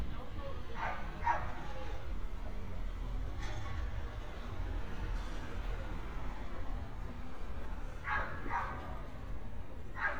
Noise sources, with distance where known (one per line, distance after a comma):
dog barking or whining, near